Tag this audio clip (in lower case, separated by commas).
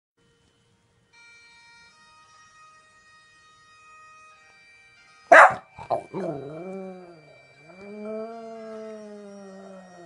bagpipes, wind instrument